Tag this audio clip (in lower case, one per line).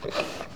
livestock
animal